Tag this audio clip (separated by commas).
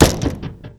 home sounds, Door